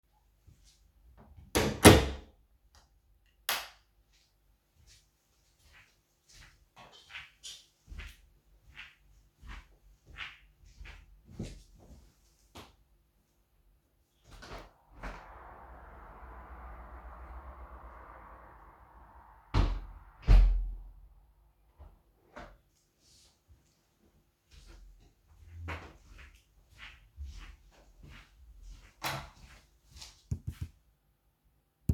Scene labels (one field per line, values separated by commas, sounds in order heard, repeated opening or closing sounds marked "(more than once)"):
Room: hallway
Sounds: door, light switch, footsteps, window (more than once)